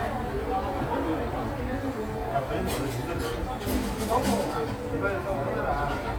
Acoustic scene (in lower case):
cafe